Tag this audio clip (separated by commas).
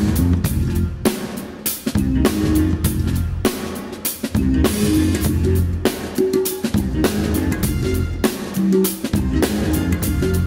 Drum, Drum kit, Musical instrument, Bass drum, Music